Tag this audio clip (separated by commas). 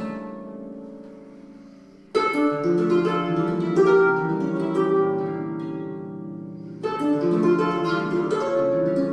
Pizzicato, Harp, playing harp